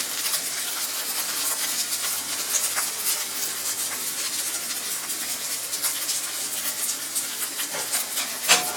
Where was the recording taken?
in a kitchen